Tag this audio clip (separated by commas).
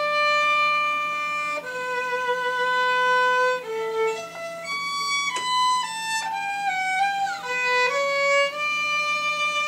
Violin, Music, Musical instrument